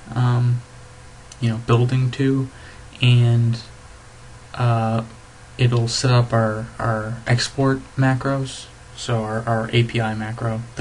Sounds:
Speech

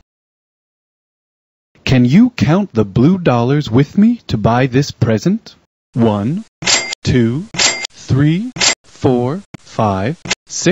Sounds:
Speech synthesizer, Cash register, Speech

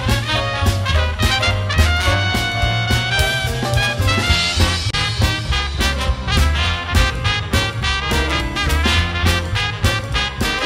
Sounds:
Swing music, Music

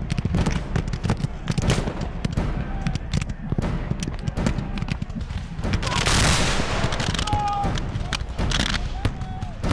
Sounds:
firing muskets

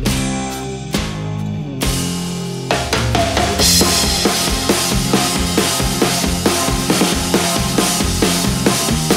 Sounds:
Music

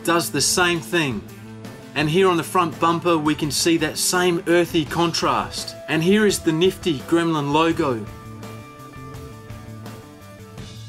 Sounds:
Music, Bass drum, Speech

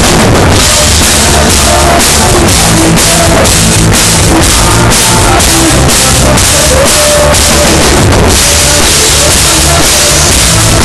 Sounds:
Singing

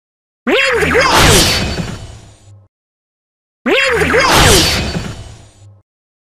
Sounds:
Speech

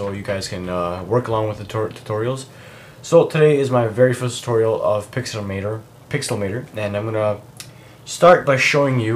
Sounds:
Speech

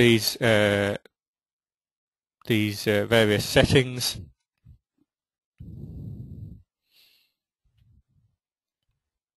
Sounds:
Speech

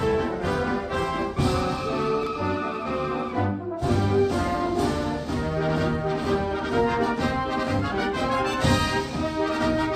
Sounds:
Brass instrument, Music

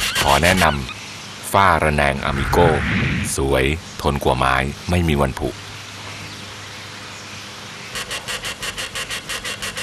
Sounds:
Mouse, Speech

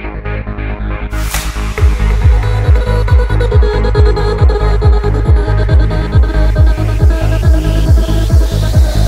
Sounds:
Trance music, Music, Electronic music, Techno

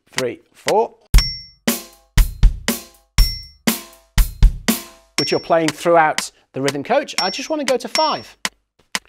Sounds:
Hi-hat, Music, Speech, Musical instrument, Drum kit, Drum

